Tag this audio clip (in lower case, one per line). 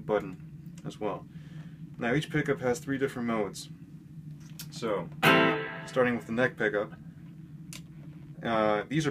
speech
music